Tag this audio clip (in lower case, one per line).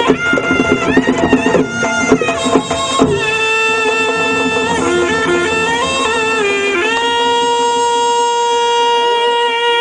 music